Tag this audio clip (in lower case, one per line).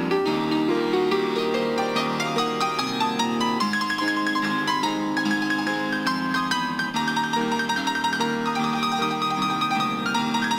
gospel music
musical instrument
piano
music